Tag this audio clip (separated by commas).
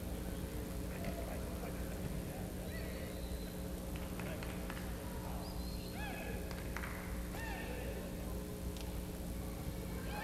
Speech